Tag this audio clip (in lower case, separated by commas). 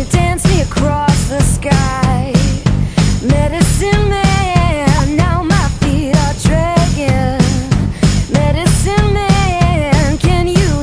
music